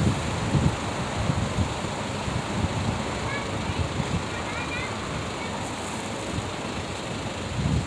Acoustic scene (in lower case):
street